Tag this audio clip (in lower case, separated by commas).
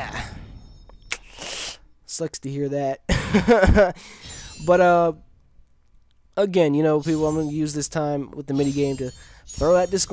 music, speech